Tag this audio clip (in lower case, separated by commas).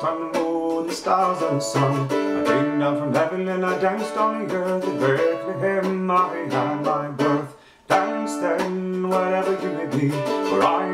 music, mandolin